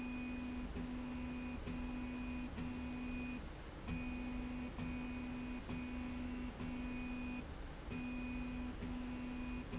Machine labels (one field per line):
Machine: slide rail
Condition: normal